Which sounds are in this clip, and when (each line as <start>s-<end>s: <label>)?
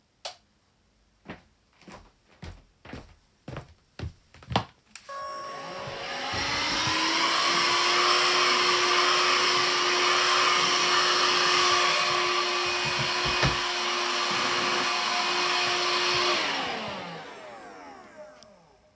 0.2s-0.5s: light switch
1.2s-4.8s: footsteps
4.9s-18.9s: vacuum cleaner
5.8s-7.0s: footsteps
15.4s-16.9s: footsteps